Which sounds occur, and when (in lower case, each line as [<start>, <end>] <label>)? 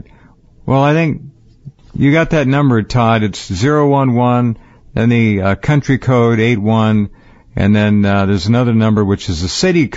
[0.00, 0.35] breathing
[0.00, 9.95] mechanisms
[0.62, 1.27] male speech
[1.42, 1.97] generic impact sounds
[1.88, 4.52] male speech
[4.54, 4.86] breathing
[4.91, 7.07] male speech
[7.11, 7.47] breathing
[7.50, 9.95] male speech